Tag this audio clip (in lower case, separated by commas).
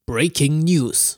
speech, male speech, human voice